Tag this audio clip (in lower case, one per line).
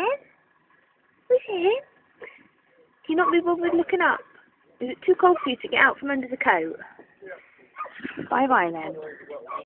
speech